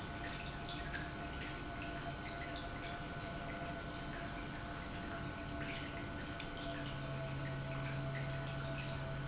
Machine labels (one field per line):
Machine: pump